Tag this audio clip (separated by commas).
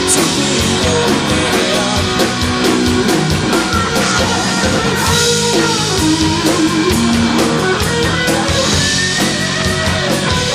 Roll, Drum, Drum kit, Musical instrument, Music